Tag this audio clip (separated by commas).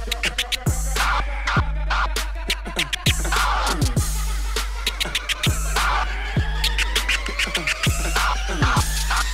disc scratching